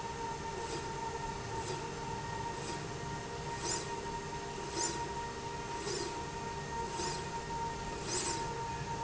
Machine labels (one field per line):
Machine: slide rail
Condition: normal